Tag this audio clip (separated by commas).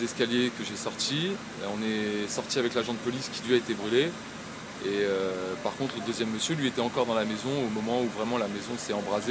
Speech